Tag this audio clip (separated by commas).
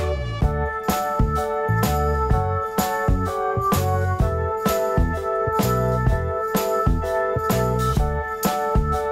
Music